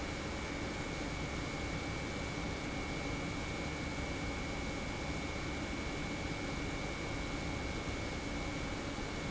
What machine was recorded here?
pump